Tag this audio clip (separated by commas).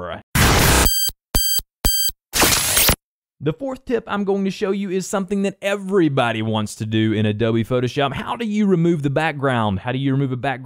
Speech